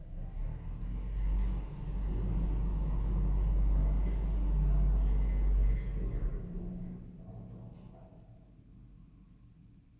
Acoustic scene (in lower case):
elevator